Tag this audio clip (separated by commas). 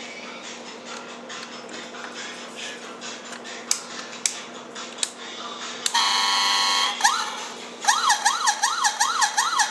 Car alarm